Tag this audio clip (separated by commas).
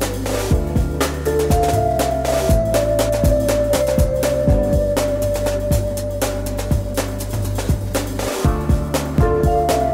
Music